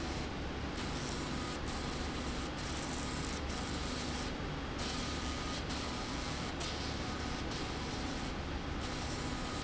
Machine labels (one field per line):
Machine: slide rail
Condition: abnormal